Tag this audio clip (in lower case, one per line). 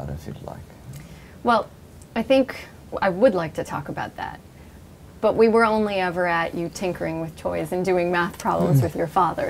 conversation
speech